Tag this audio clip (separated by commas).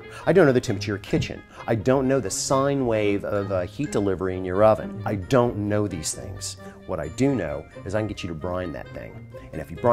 Speech, Music